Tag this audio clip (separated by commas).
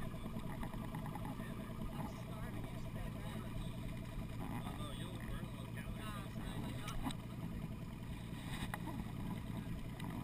Speech